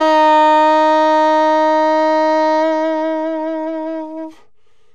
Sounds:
wind instrument, musical instrument, music

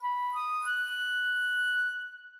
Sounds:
wind instrument, musical instrument, music

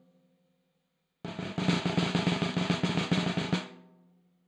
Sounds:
percussion, musical instrument, music, snare drum, drum

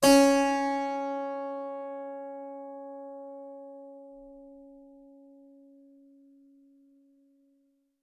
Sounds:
keyboard (musical), musical instrument, music

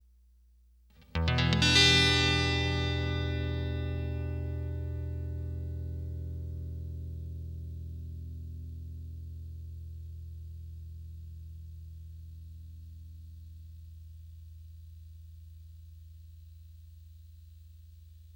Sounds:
plucked string instrument, music, musical instrument, guitar

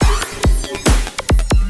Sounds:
percussion, music, drum kit, musical instrument

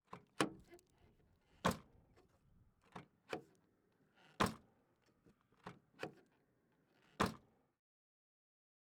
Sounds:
home sounds, slam, door

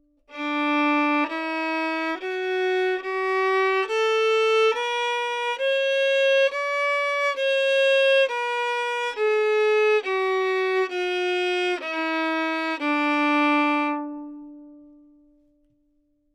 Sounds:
music, bowed string instrument, musical instrument

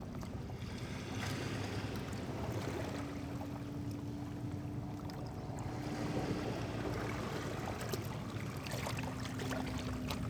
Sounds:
waves, water, ocean

